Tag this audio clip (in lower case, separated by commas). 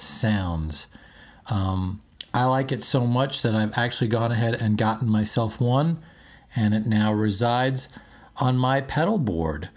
speech